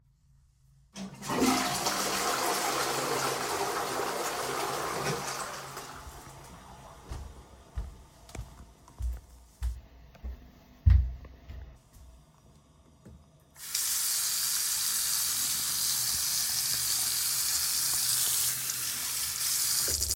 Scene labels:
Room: lavatory, hallway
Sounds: toilet flushing, footsteps, running water

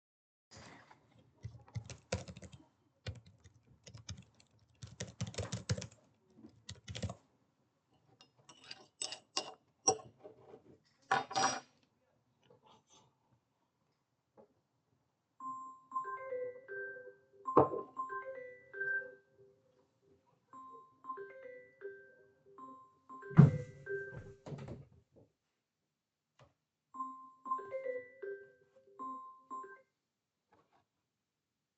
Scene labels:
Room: bedroom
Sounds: keyboard typing, cutlery and dishes, phone ringing, window

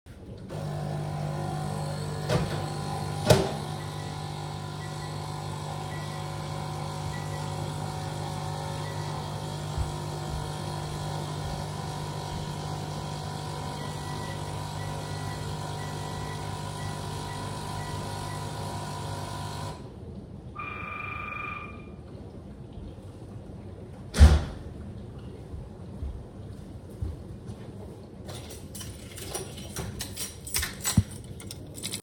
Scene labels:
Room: kitchen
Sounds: coffee machine, microwave, bell ringing, door, footsteps, keys

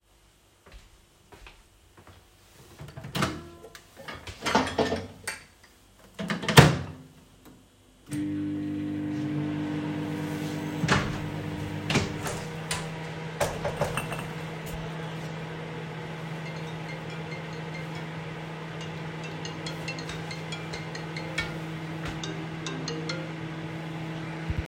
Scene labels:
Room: kitchen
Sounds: footsteps, microwave, window (more than once), phone ringing

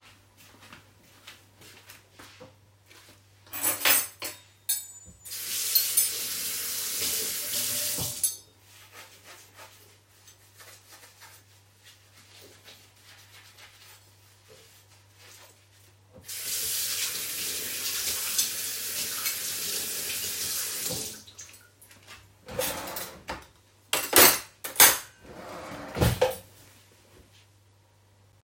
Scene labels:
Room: kitchen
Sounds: footsteps, cutlery and dishes, running water, wardrobe or drawer (more than once)

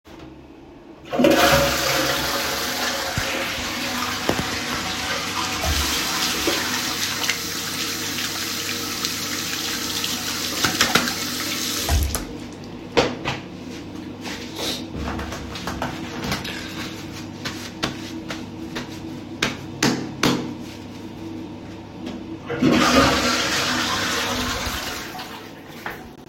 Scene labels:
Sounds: toilet flushing, running water

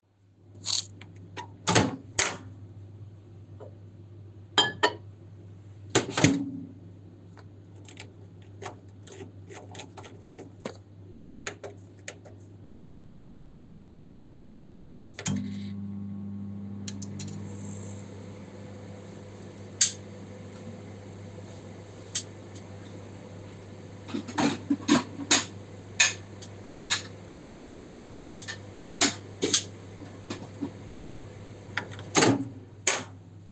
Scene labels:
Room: kitchen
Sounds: microwave, cutlery and dishes

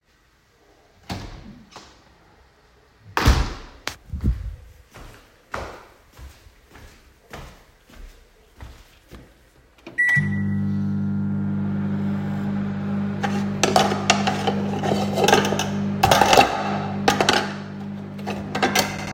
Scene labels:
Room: kitchen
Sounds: door (more than once), footsteps, microwave, cutlery and dishes

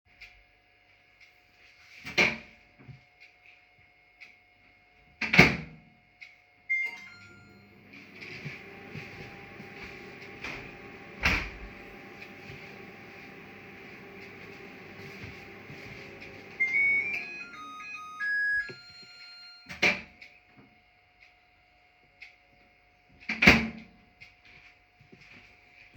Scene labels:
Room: kitchen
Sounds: microwave, window

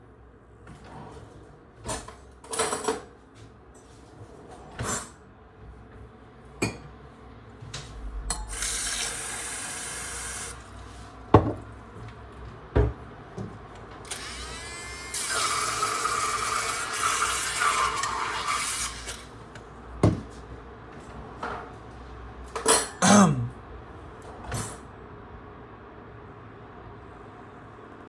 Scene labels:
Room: kitchen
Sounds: wardrobe or drawer (more than once), cutlery and dishes, running water

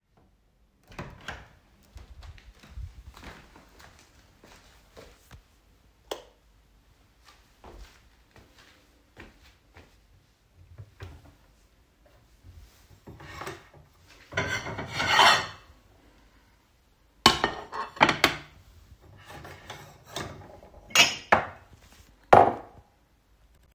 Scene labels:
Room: kitchen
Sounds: door, footsteps, light switch, wardrobe or drawer (more than once), cutlery and dishes

